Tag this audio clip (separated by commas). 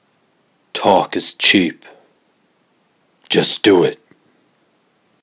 Human voice